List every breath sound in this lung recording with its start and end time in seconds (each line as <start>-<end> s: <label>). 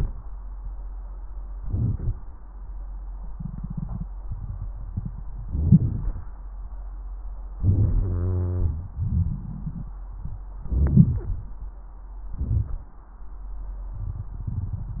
1.57-2.20 s: inhalation
5.41-6.31 s: inhalation
5.41-6.31 s: wheeze
7.59-8.87 s: inhalation
7.98-8.87 s: wheeze
8.96-9.92 s: exhalation
8.96-9.92 s: crackles
10.54-11.53 s: inhalation
12.33-12.88 s: inhalation